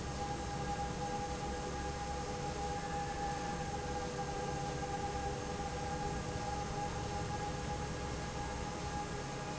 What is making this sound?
fan